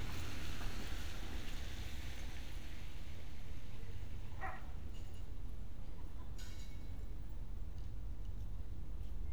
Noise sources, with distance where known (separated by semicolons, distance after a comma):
non-machinery impact, far; dog barking or whining, far